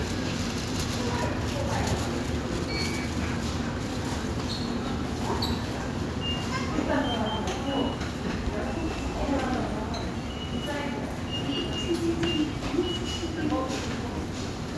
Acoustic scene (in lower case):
subway station